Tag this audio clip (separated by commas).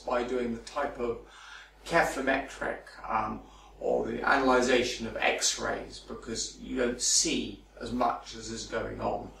Speech